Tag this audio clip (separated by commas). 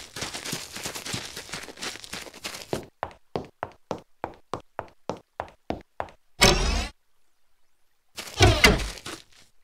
Sound effect, outside, rural or natural